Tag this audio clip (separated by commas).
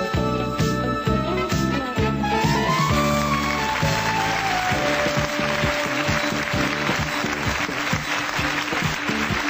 Music